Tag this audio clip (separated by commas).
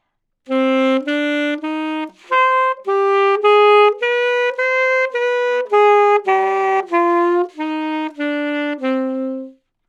Musical instrument, Wind instrument, Music